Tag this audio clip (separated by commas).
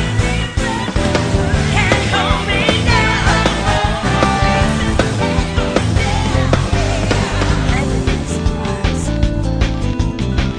Music